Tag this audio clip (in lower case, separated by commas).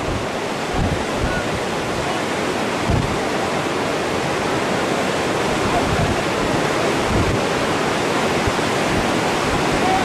speech